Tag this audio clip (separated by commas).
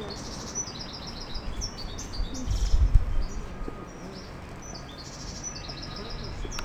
Bird, Wild animals, Animal